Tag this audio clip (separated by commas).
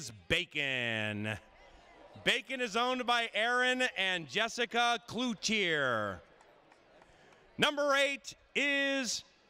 Speech